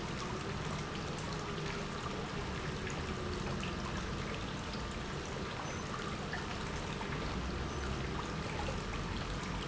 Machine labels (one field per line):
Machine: pump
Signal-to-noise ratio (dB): -6 dB